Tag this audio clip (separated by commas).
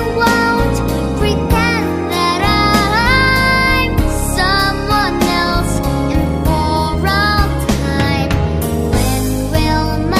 Music, Singing